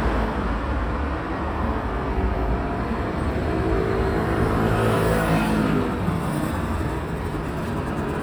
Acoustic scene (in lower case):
residential area